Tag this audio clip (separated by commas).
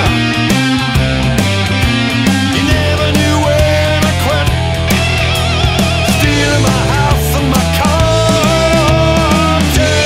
Music